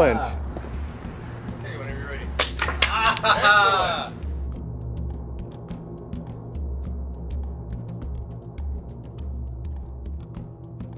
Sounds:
cap gun shooting

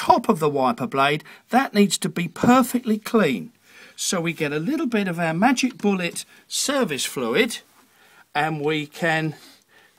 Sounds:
speech

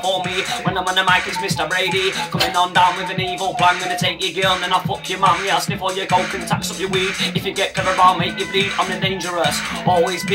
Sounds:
music

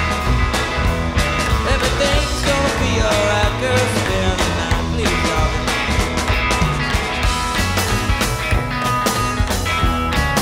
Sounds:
music

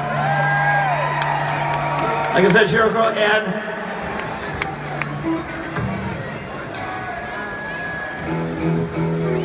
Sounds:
speech, music

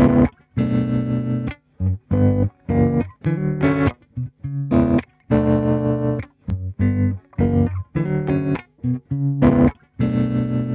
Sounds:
music

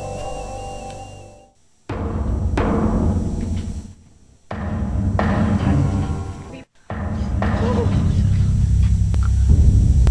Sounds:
music, speech

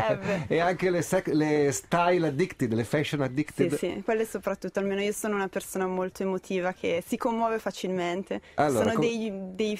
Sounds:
speech

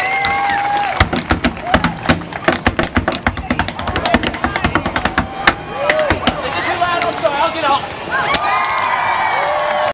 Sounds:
tap, speech

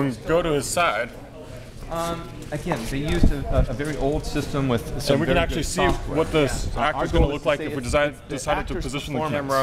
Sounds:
speech

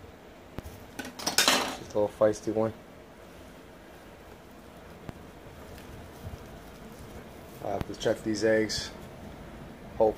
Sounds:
speech, inside a small room

